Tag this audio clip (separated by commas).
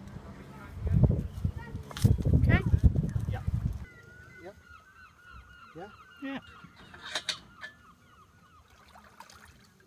Speech